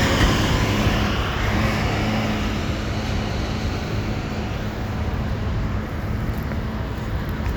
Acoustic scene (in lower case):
residential area